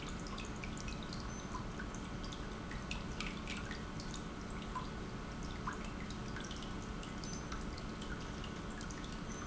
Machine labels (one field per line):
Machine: pump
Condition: normal